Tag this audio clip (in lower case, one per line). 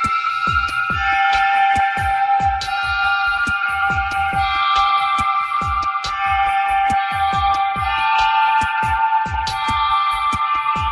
music